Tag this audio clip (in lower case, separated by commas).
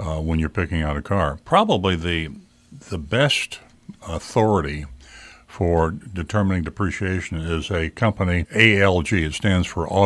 speech